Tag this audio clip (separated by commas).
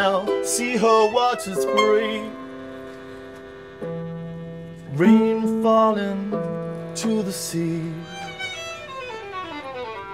Pizzicato, Bowed string instrument, Violin, Harp